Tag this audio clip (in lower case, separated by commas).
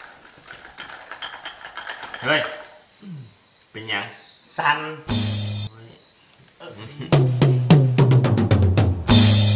music, speech